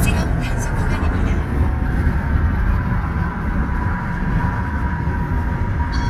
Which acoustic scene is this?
car